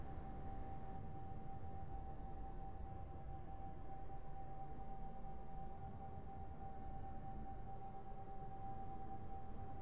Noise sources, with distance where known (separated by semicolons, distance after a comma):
background noise